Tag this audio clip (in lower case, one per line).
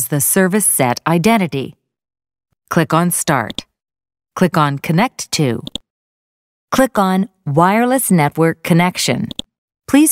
speech